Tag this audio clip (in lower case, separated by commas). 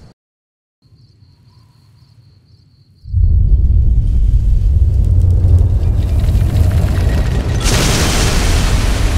explosion, burst